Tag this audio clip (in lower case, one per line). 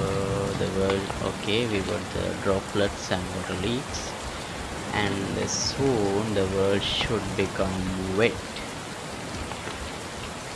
raining